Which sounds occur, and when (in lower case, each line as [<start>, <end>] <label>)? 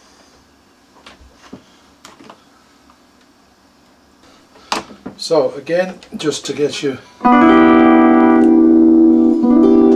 [0.00, 9.95] mechanisms
[0.95, 1.16] generic impact sounds
[1.34, 1.62] generic impact sounds
[2.00, 2.40] generic impact sounds
[2.81, 3.00] generic impact sounds
[3.16, 3.31] generic impact sounds
[4.22, 5.21] generic impact sounds
[5.18, 7.12] man speaking
[5.84, 6.13] generic impact sounds
[7.18, 9.95] music